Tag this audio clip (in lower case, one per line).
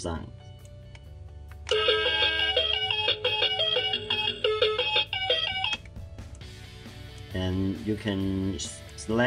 inside a small room
music
speech